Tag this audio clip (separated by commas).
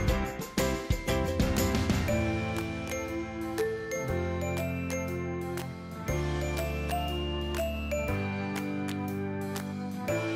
Music